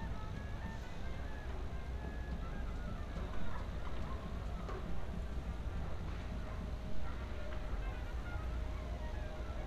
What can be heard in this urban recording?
music from a fixed source